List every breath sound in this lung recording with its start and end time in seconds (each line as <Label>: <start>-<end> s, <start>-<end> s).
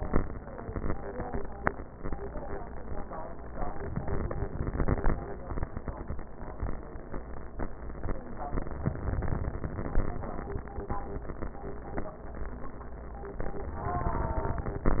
Inhalation: 3.84-5.14 s, 8.72-10.01 s